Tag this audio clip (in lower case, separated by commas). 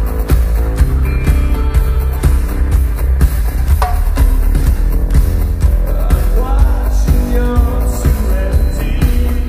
rock and roll, pop music, music